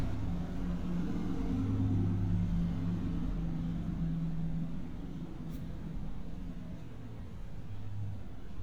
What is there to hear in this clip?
engine of unclear size